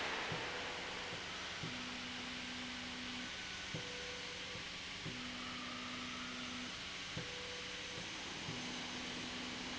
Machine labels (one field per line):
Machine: slide rail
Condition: normal